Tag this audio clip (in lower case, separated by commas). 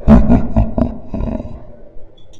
human voice, laughter